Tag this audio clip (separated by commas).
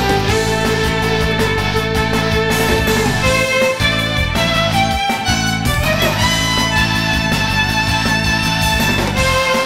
Musical instrument, fiddle, Music